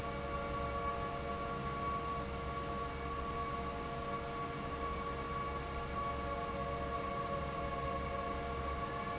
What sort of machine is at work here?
fan